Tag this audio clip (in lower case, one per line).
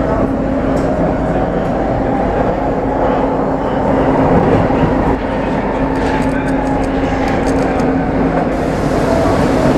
subway